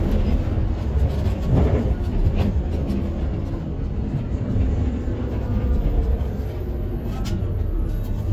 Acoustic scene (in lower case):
bus